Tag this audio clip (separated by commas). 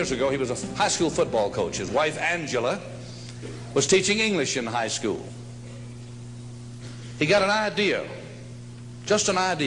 Speech, Narration, man speaking